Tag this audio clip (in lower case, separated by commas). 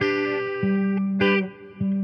music, guitar, musical instrument, electric guitar, plucked string instrument